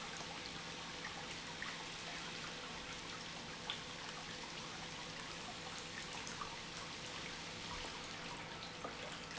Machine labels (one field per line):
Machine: pump